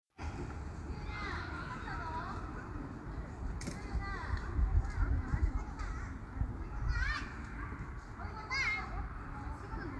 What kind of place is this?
park